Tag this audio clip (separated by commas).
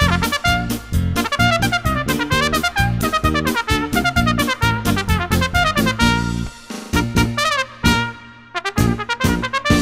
Brass instrument, Trumpet, playing trumpet